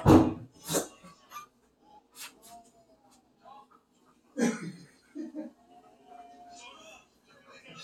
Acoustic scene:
kitchen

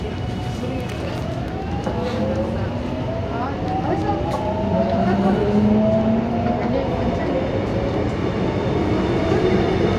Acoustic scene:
subway train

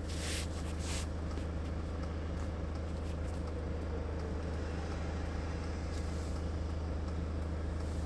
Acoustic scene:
car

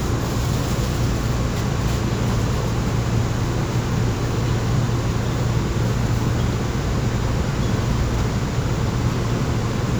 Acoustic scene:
subway train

